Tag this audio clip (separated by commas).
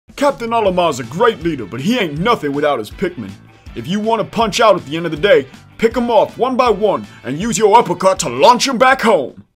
Music, Speech